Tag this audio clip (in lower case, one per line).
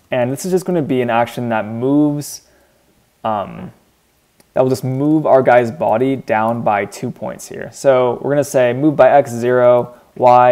speech